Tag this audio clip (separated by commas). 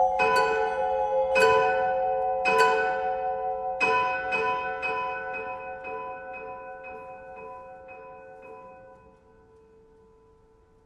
Vibraphone, Music, Bell